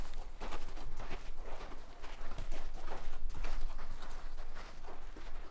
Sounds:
Walk

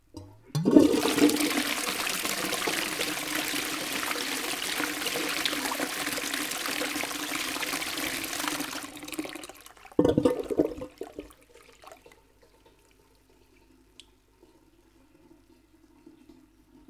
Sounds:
home sounds, Toilet flush

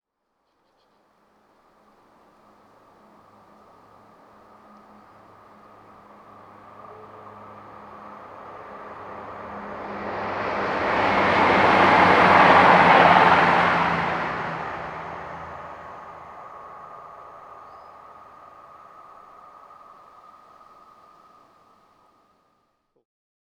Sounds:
Train, Vehicle, Rail transport

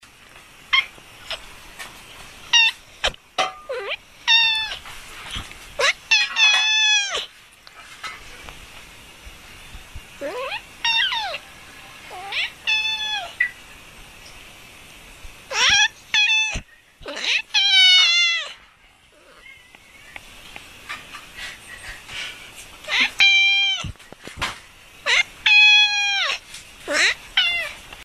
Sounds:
Animal, Meow, Cat, Domestic animals

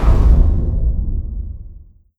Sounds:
Boom, Explosion

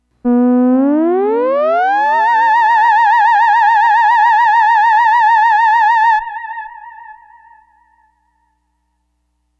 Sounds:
Music, Musical instrument

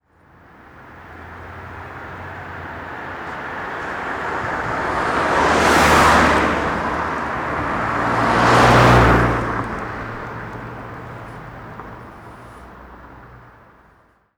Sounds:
Motor vehicle (road), Car, Vehicle, Car passing by

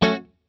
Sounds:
Music, Plucked string instrument, Guitar, Musical instrument

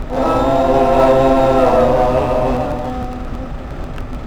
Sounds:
Human voice, Singing

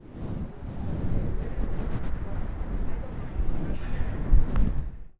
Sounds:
Wind

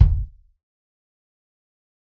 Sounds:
Percussion, Bass drum, Drum, Musical instrument, Music

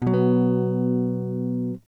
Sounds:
Musical instrument, Strum, Guitar, Plucked string instrument, Electric guitar, Music

